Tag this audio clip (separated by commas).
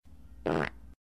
Fart